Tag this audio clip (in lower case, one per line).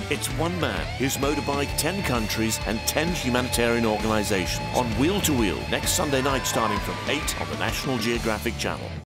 speech
music